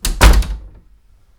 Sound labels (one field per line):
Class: door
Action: opening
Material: wooden